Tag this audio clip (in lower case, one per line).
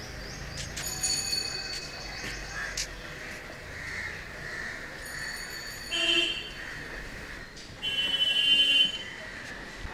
speech